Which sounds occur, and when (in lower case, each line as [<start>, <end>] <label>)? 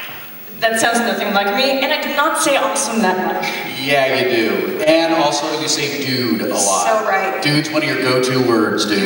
[0.00, 9.05] mechanisms
[0.55, 0.68] generic impact sounds
[0.57, 3.37] female speech
[0.58, 9.05] conversation
[3.39, 3.67] generic impact sounds
[3.59, 7.06] man speaking
[6.33, 6.42] tick
[6.48, 7.35] female speech
[7.41, 9.05] man speaking